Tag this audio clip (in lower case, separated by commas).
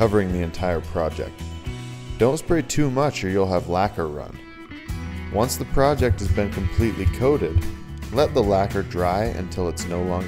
speech, music